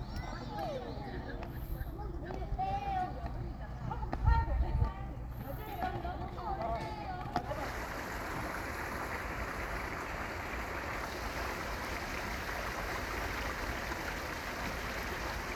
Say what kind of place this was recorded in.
park